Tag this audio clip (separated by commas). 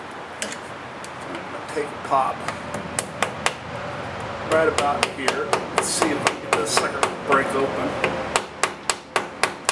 Hammer